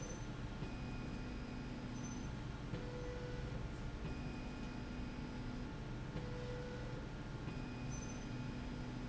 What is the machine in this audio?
slide rail